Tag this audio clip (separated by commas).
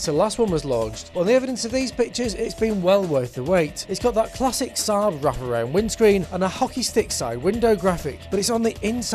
Speech, Music